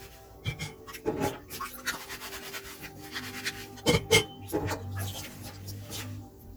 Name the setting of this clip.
kitchen